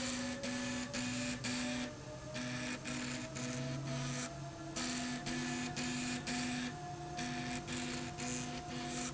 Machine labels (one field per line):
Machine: slide rail